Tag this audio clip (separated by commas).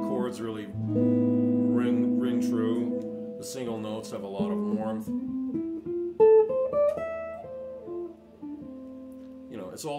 Musical instrument, Music, Plucked string instrument, Guitar